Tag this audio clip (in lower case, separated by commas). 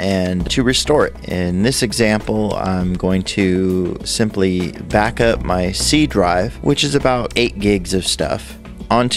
speech, music